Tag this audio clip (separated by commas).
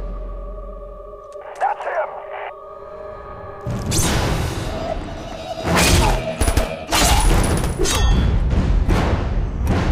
Music, Speech